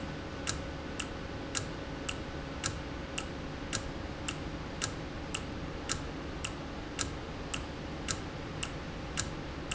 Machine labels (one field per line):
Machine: valve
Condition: normal